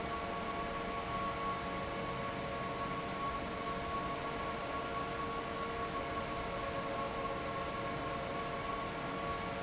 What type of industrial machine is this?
fan